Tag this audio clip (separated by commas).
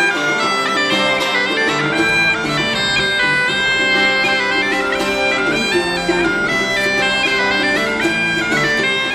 Music, Bagpipes